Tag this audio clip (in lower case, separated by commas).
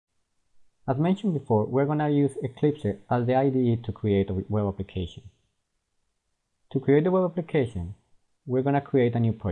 speech, inside a small room